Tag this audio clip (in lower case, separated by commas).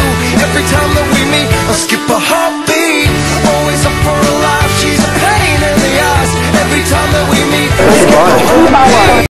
speech, music